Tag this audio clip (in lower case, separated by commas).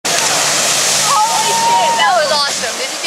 vehicle, slosh, speech